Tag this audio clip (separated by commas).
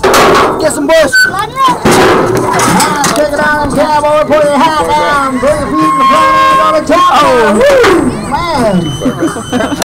Animal, Music, Horse, Speech